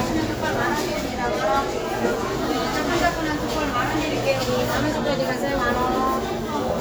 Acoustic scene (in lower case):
crowded indoor space